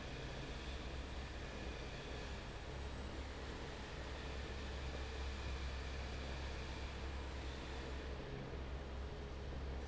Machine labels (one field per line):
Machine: fan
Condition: normal